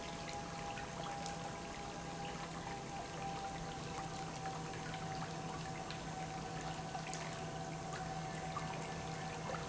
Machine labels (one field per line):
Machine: pump